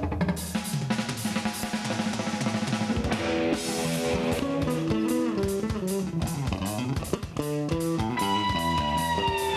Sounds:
Music, Bass guitar, Guitar, Plucked string instrument, Cymbal, Musical instrument, Snare drum

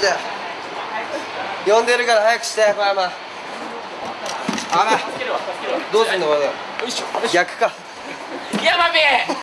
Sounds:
Speech

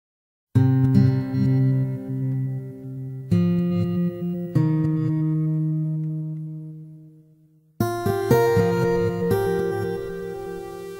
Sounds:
Electronic tuner, Music

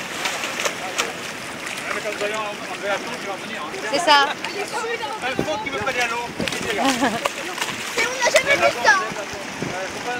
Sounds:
Speech, outside, rural or natural

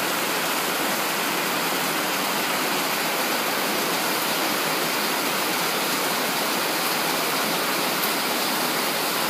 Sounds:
Rain on surface

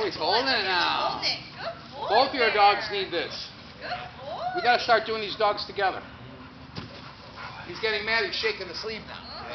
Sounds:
Domestic animals, Speech, Dog, Animal, Yip

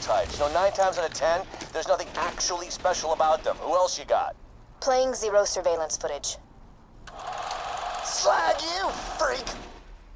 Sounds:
Speech

